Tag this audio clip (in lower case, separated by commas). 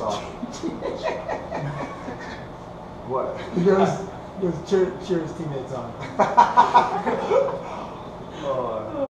speech